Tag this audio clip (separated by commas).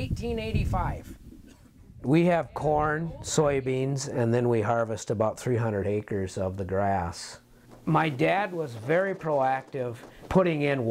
Speech